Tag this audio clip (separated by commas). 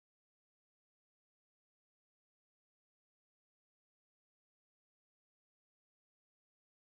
Silence